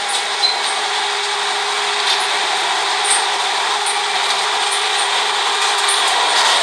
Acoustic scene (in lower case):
subway train